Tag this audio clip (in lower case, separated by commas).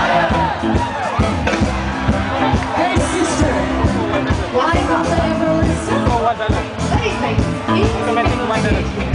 speech, music